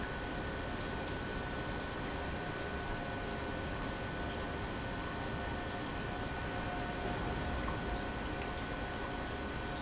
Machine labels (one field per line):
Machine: pump